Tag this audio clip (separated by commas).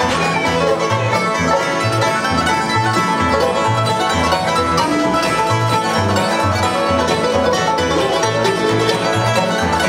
Bluegrass, Music